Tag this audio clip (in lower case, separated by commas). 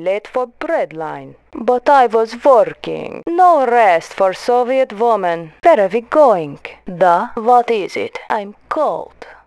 speech